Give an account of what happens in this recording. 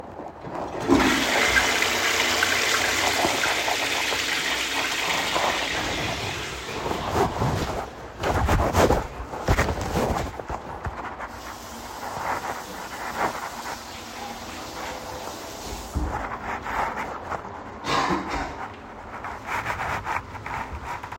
I flushed the toilet. I then went to the sink and washed my hands. Afterwards, I coughed.